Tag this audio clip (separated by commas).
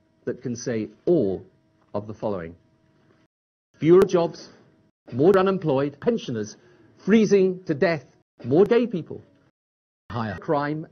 man speaking, Narration, Speech